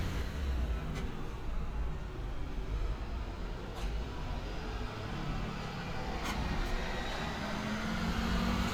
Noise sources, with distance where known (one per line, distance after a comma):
large-sounding engine, near